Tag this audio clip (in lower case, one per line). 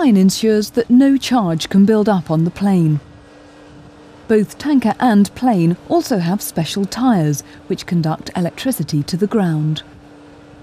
speech